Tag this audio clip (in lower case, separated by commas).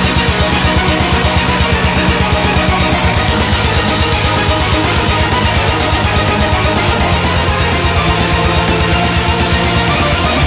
soundtrack music, music